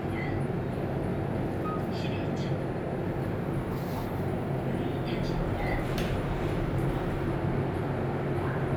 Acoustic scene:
elevator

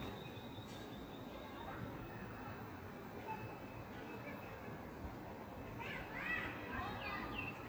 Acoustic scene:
park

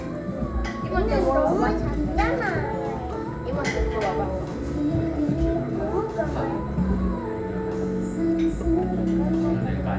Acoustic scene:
crowded indoor space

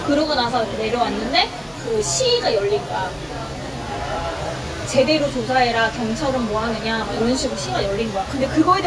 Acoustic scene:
restaurant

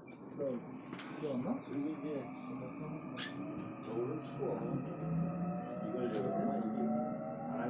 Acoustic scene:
subway train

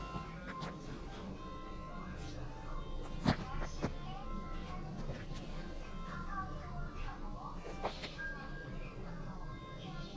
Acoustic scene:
elevator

